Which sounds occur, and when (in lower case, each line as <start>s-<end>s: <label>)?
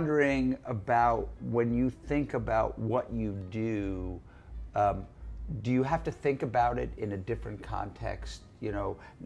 0.0s-1.2s: male speech
0.0s-9.2s: mechanisms
0.0s-9.2s: music
1.4s-4.2s: male speech
4.2s-4.6s: breathing
4.7s-5.0s: male speech
5.4s-8.4s: male speech
8.6s-8.9s: male speech
8.9s-9.2s: breathing